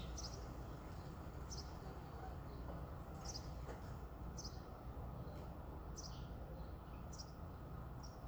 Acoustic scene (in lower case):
residential area